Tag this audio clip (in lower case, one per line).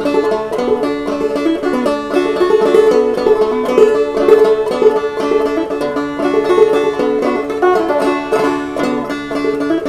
banjo
music
plucked string instrument
musical instrument
playing banjo